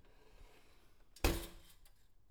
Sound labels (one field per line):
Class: window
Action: closing